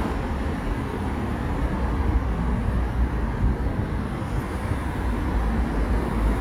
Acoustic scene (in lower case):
street